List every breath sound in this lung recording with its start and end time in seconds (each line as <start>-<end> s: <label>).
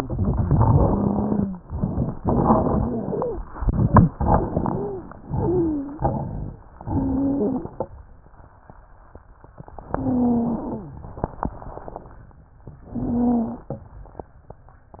0.00-1.46 s: crackles
0.63-1.58 s: wheeze
2.18-3.42 s: crackles
2.66-3.42 s: wheeze
4.17-5.14 s: inhalation
4.17-5.14 s: crackles
4.57-5.14 s: wheeze
5.31-6.13 s: wheeze
6.85-7.67 s: inhalation
6.85-7.67 s: wheeze
9.87-11.06 s: inhalation
9.87-11.06 s: wheeze
12.85-13.66 s: inhalation
12.85-13.66 s: wheeze